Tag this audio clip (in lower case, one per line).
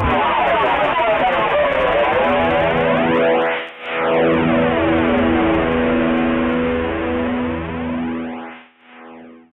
music
plucked string instrument
guitar
musical instrument